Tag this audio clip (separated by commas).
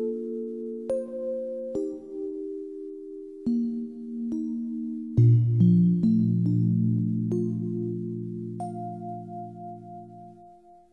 Music